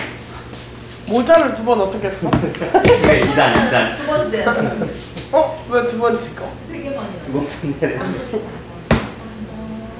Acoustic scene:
crowded indoor space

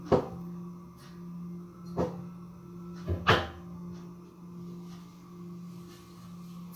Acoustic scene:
kitchen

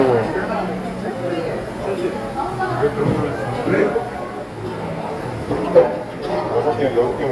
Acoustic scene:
cafe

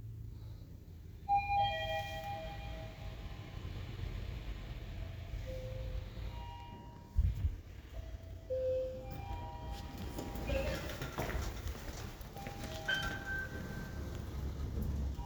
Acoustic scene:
elevator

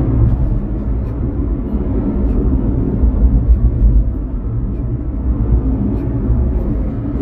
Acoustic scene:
car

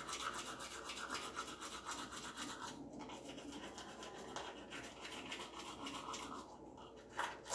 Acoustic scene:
restroom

